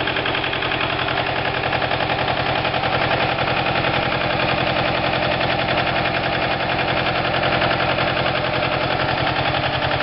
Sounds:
engine, vibration

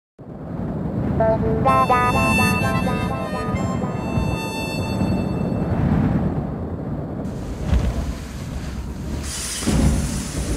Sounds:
wind instrument, harmonica

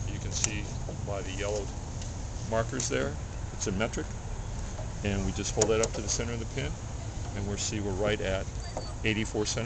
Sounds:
tools, speech

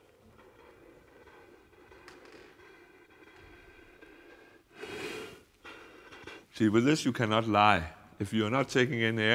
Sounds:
speech, gasp

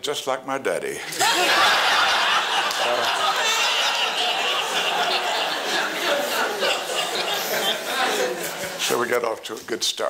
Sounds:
speech

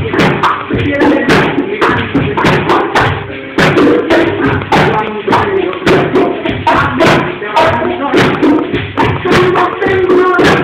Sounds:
music, percussion

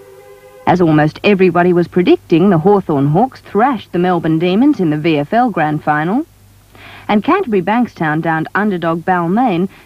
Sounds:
speech, music

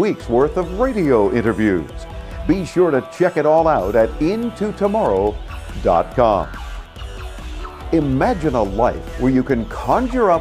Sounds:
music, speech

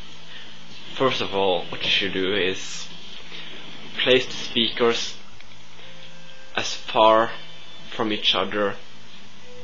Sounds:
speech, music

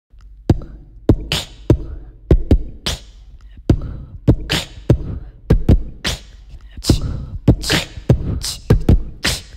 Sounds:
beatboxing

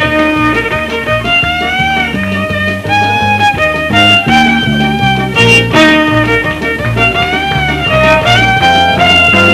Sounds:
violin, musical instrument, music

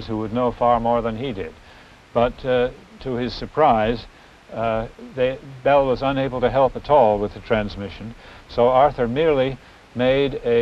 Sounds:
speech

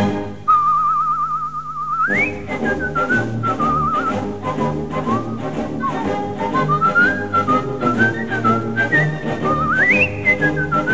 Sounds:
whistling

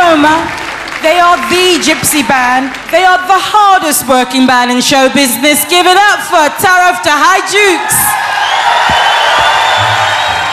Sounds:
speech

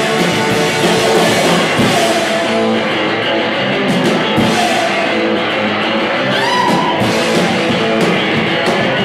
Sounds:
music

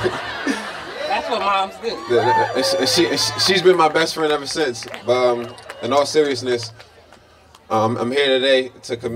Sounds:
speech, music

